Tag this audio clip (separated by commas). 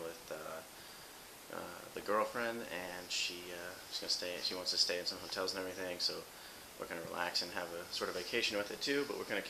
Speech